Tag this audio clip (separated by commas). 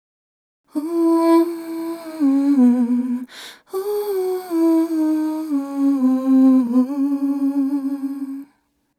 Female singing, Human voice, Singing